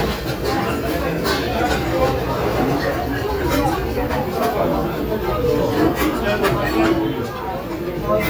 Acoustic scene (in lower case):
restaurant